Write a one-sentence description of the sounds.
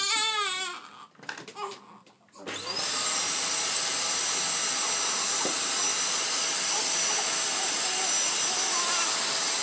Baby crying then drill sounds